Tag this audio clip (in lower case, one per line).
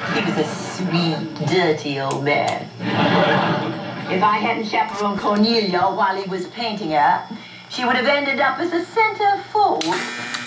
television
speech
inside a small room